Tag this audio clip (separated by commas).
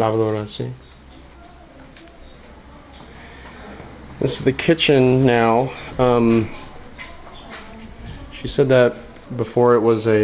Speech